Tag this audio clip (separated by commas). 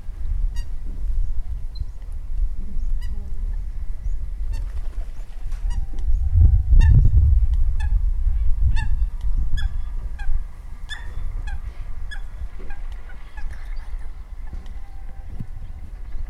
Wind